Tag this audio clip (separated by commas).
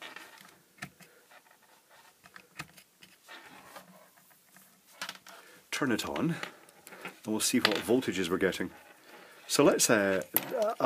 Speech